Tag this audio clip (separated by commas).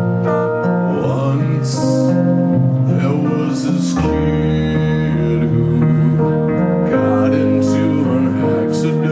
Music, Tender music